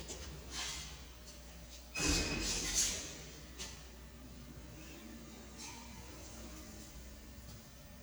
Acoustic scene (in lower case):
elevator